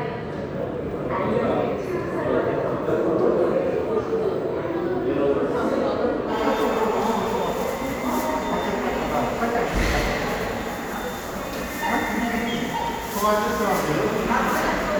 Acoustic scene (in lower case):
subway station